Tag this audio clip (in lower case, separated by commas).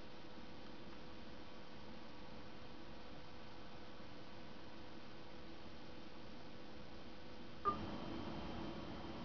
silence, inside a small room